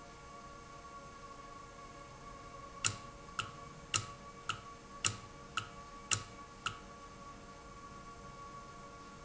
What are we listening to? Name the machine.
valve